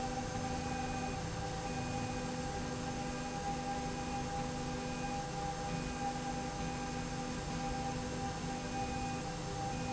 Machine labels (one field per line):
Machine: slide rail